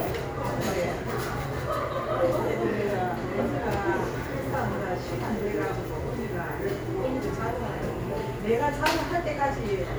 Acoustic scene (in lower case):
cafe